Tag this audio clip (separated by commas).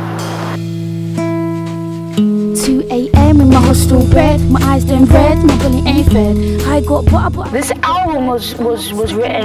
Speech, Narration, Music, woman speaking